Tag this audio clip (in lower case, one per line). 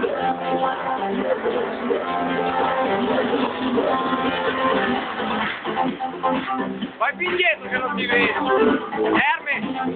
music
speech